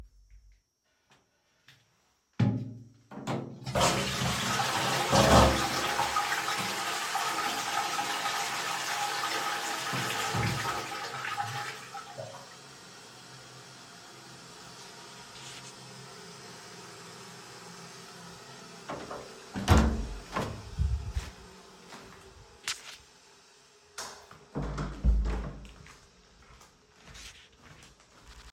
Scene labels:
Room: lavatory; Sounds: door (more than once), toilet flushing, footsteps, light switch

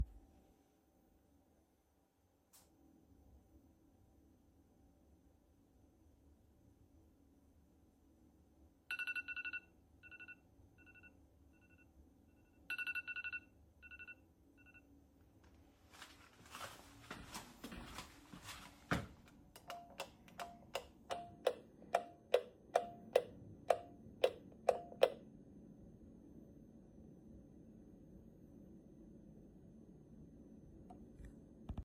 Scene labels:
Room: bedroom; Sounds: phone ringing, footsteps, light switch

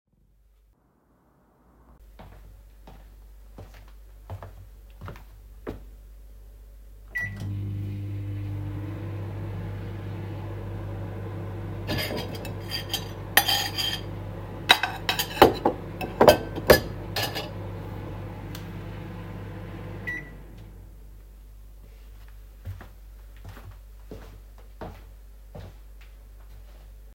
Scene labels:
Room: kitchen; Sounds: footsteps, microwave, cutlery and dishes

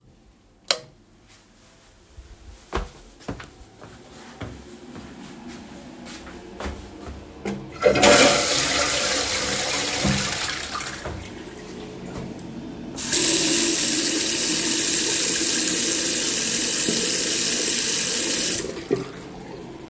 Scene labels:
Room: lavatory, hallway; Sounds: light switch, footsteps, toilet flushing, running water

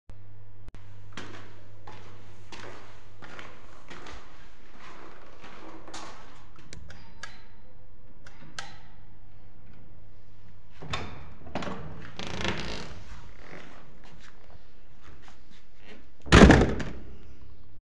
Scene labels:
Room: hallway; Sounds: footsteps, bell ringing, door (more than once)

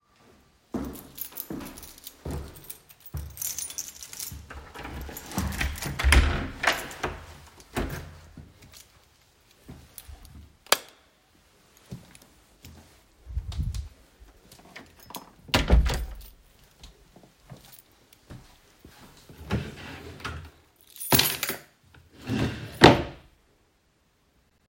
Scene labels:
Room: hallway; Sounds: footsteps, keys, door (more than once), light switch, wardrobe or drawer (more than once)

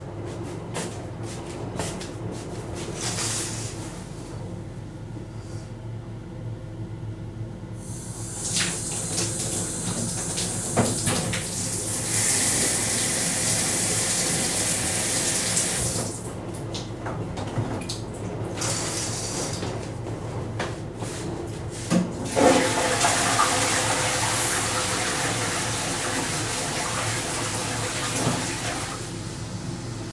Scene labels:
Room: bathroom; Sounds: footsteps, running water, toilet flushing

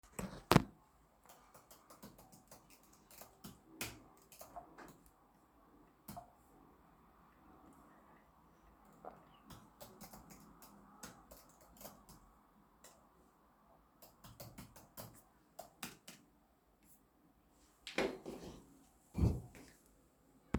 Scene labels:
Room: office; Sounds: keyboard typing

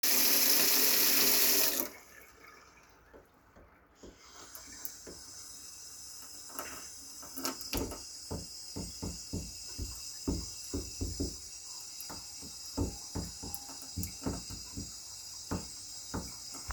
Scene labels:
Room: kitchen; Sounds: running water

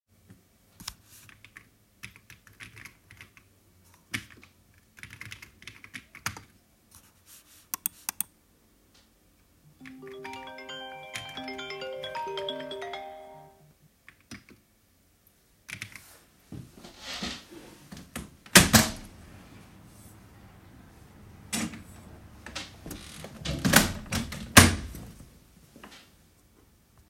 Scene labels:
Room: office; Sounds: keyboard typing, phone ringing, window (more than once)

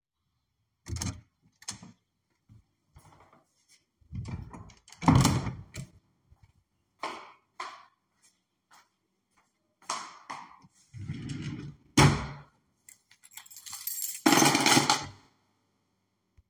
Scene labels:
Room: hallway; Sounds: door (more than once), footsteps, wardrobe or drawer, keys

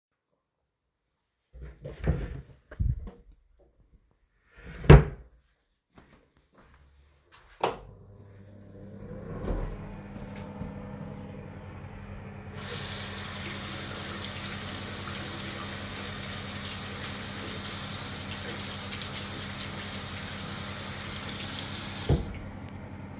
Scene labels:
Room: bathroom; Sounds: wardrobe or drawer (more than once), footsteps, light switch, running water

